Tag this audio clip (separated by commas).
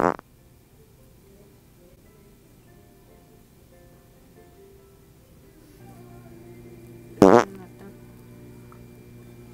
people farting